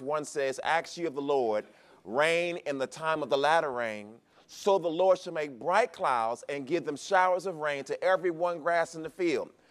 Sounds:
speech

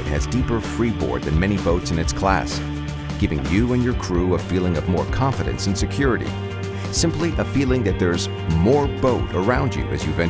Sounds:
speech
music

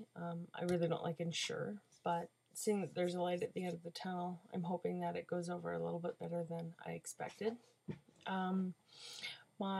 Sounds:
speech

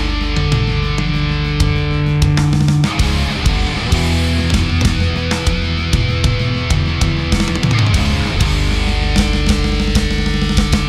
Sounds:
music

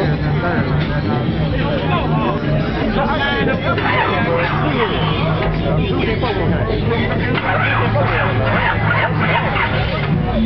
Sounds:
music
speech

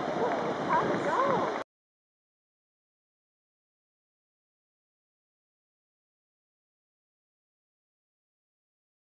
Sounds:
speech

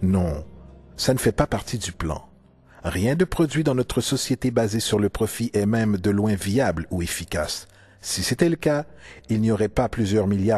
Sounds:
monologue
speech

